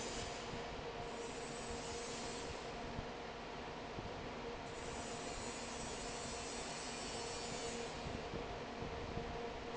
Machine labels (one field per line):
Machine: fan